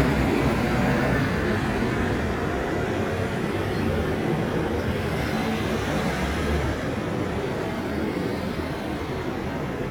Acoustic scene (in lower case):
street